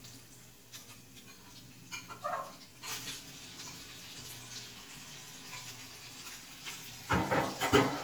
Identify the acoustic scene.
kitchen